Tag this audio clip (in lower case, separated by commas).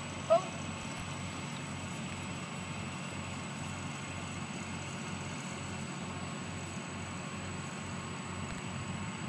animal, pets, dog